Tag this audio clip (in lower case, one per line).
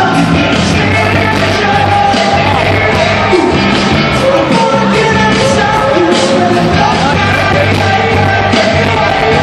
music
inside a public space
speech